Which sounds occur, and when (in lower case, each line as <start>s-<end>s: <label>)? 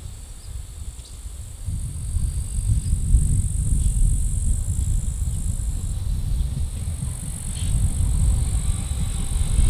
0.0s-9.6s: train
0.0s-9.6s: wind noise (microphone)
0.3s-0.5s: chirp
0.9s-1.1s: chirp
2.7s-3.0s: chirp
3.8s-4.0s: chirp
4.7s-4.9s: chirp
5.2s-5.5s: chirp
8.1s-9.6s: train wheels squealing